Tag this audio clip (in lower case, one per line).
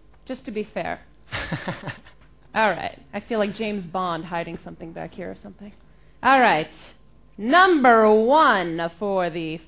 speech
inside a large room or hall